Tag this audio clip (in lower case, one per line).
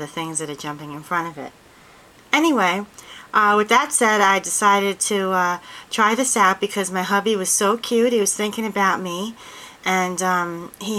speech